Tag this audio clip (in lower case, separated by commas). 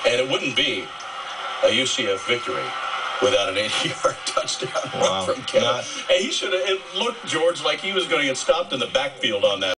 speech